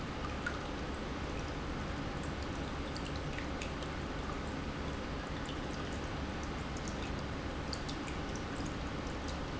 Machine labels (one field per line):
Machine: pump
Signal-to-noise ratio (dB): -6 dB